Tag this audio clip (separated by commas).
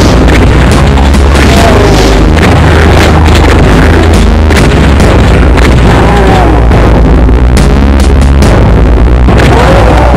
Speech